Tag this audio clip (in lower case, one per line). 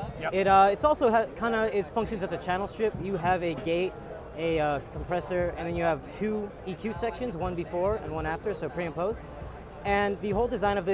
speech